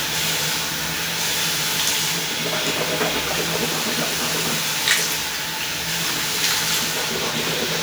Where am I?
in a restroom